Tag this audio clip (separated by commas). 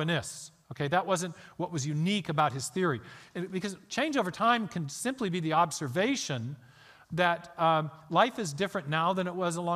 Speech